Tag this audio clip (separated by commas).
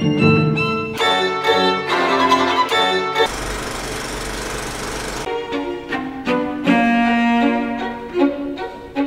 Music